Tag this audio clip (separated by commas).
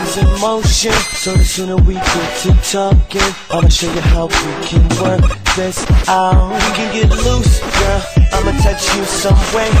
Music